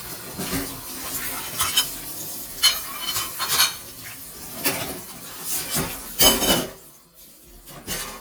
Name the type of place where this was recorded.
kitchen